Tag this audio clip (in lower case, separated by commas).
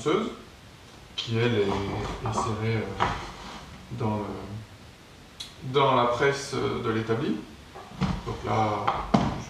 speech